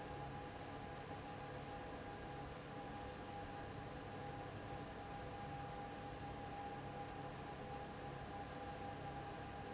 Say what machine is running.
fan